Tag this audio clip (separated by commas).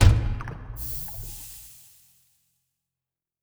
Liquid